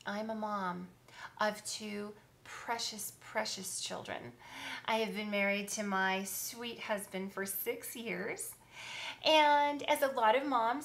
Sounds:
speech

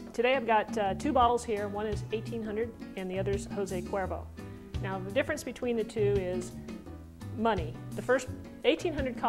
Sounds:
speech, music

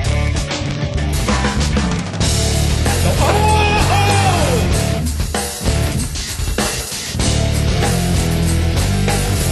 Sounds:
music, roll, speech

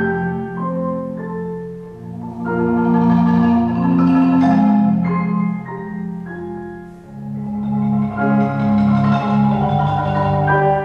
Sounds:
percussion, musical instrument, classical music, music, xylophone, piano

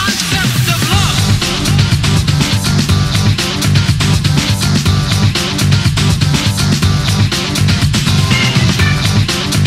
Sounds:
music

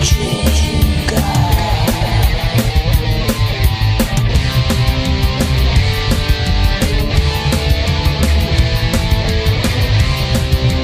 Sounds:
music

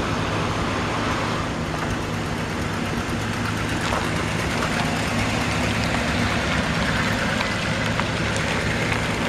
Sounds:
truck, vehicle

